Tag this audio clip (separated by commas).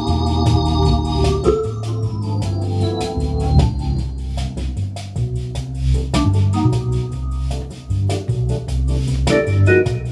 playing hammond organ